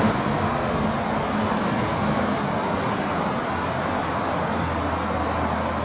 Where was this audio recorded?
on a street